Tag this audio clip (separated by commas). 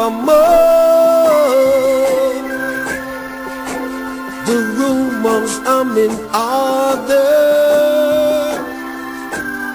Music